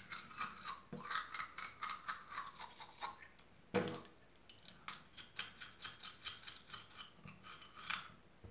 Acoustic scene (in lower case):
restroom